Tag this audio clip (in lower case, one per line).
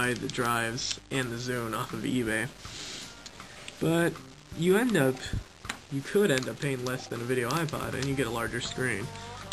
speech